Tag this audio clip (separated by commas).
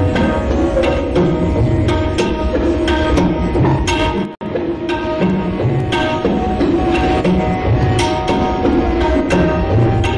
Tabla, Music